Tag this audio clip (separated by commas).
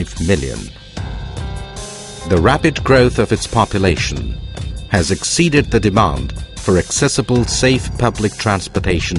Speech, Music